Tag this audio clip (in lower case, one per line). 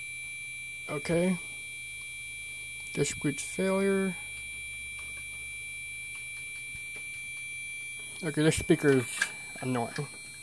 speech
beep